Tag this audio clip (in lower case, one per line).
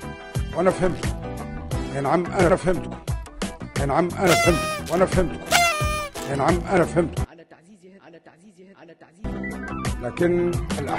male speech
music
narration
speech